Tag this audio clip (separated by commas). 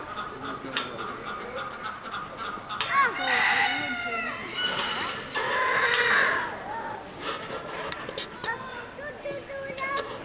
Bird, Chicken, Speech